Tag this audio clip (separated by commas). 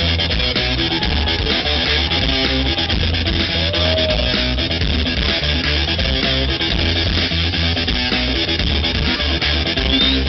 Music